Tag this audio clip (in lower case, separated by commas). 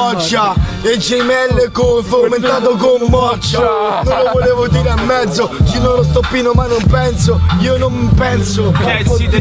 music, rapping, hip hop music